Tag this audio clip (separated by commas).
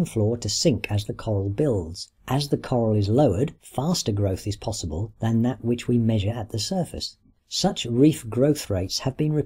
Narration